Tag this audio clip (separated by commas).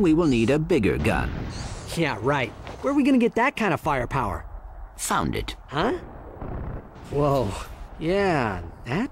Speech